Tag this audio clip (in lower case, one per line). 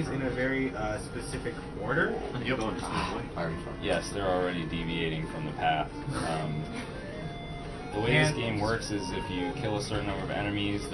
music
speech